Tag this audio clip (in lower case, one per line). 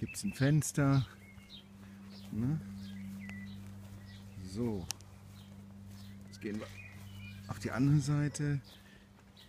speech